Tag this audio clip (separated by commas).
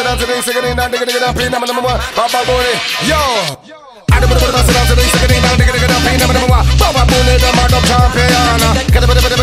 Music, Sound effect